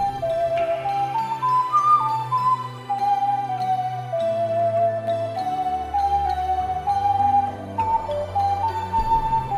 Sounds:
Flute, woodwind instrument, inside a small room, Music

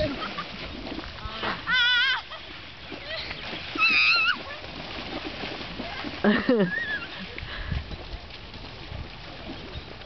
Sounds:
Stream, pets

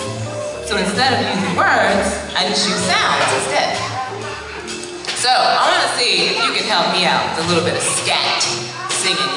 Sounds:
Speech

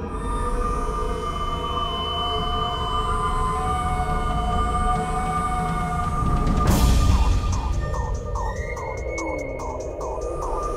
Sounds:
Music

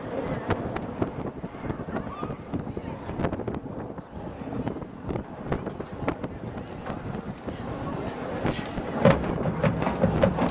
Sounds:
Speech

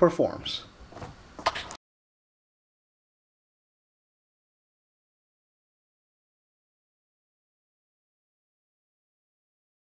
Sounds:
Speech, Silence

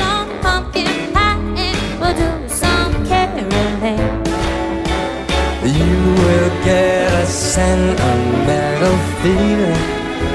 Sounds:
Music

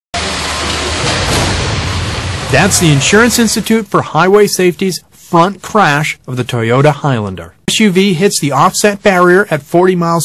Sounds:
Motor vehicle (road), Speech, Car, Vehicle

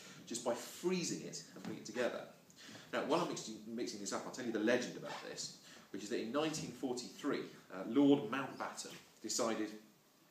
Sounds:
Speech

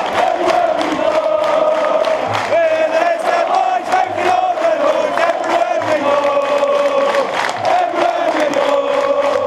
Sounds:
Speech

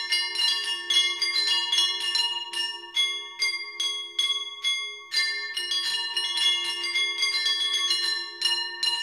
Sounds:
Music, Percussion

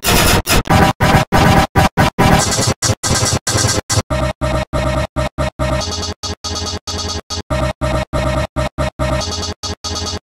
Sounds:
Music

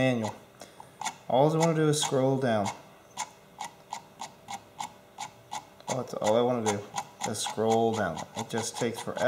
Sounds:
inside a small room, Speech

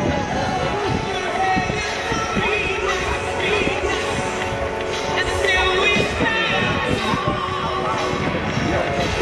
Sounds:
Speech, Run, Music

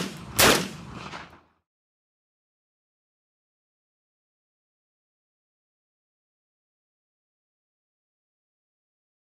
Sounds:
Silence

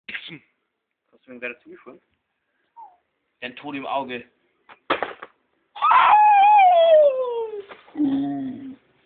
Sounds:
Animal, pets, Speech

